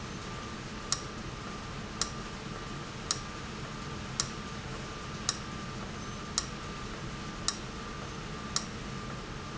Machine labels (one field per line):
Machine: valve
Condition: abnormal